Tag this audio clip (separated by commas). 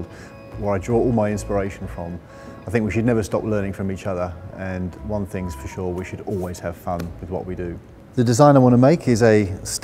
Speech, Music